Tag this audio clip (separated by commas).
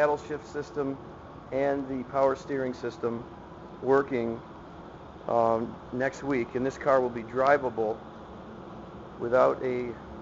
Speech, inside a large room or hall